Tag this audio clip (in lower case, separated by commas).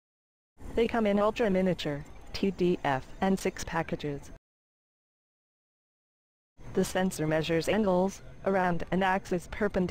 speech